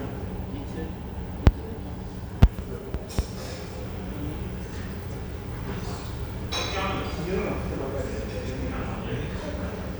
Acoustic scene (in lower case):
cafe